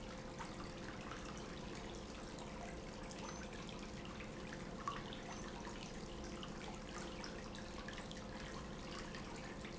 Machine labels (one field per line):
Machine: pump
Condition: abnormal